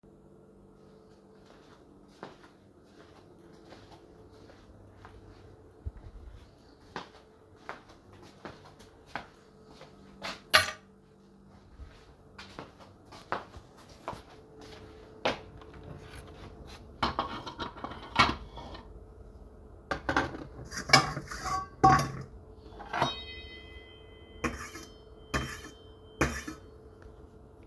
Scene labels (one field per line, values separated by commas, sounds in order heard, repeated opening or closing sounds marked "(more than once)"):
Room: bedroom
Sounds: footsteps, keys, cutlery and dishes